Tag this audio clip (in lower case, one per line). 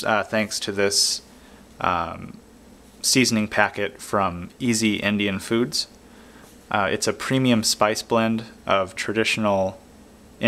speech